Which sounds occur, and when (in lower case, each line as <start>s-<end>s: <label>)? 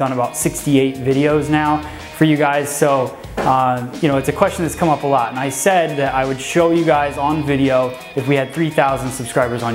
0.0s-0.3s: man speaking
0.0s-9.7s: music
0.6s-1.8s: man speaking
2.2s-3.1s: man speaking
3.0s-3.3s: generic impact sounds
3.3s-3.8s: man speaking
4.0s-7.9s: man speaking
8.1s-9.7s: man speaking